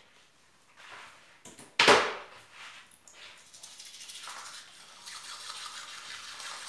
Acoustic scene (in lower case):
restroom